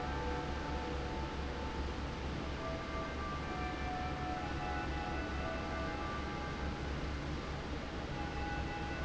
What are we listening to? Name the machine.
fan